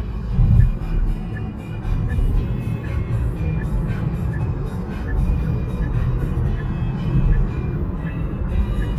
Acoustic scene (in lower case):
car